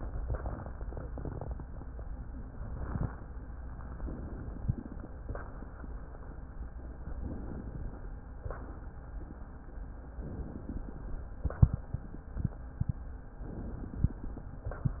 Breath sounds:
4.04-5.05 s: inhalation
7.08-8.08 s: inhalation
10.17-11.18 s: inhalation
13.43-14.44 s: inhalation

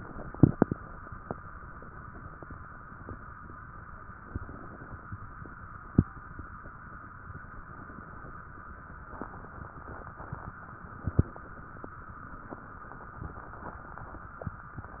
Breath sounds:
4.23-5.09 s: inhalation
7.63-8.48 s: inhalation

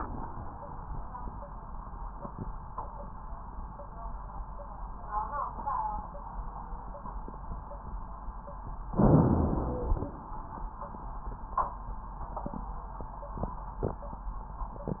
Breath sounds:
8.97-10.11 s: inhalation

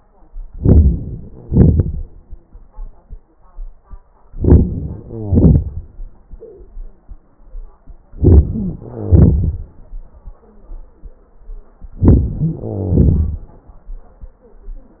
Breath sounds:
0.44-1.38 s: crackles
0.44-1.39 s: inhalation
1.40-2.94 s: exhalation
1.40-2.94 s: crackles
4.26-5.06 s: inhalation
5.05-6.24 s: exhalation
8.12-8.81 s: inhalation
8.53-8.82 s: wheeze
8.84-10.49 s: exhalation
11.92-12.59 s: inhalation
11.92-12.59 s: crackles
12.59-13.86 s: exhalation

